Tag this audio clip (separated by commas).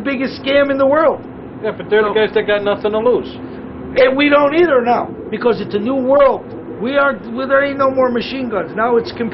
Speech